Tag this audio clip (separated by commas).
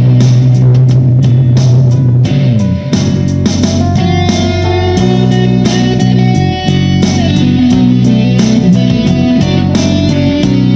Blues, Music